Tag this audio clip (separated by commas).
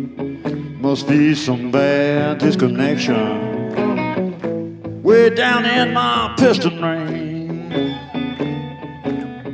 Music